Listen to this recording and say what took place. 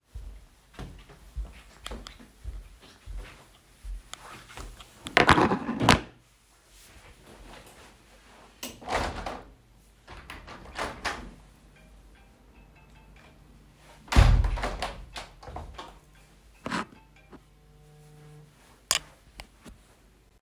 I walked through the room and opened the window. After that, a phone notification sounded, and I then closed the window.